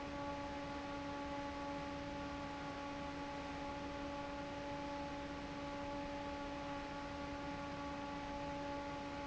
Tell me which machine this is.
fan